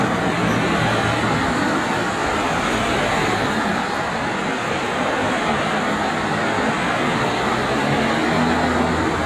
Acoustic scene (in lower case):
street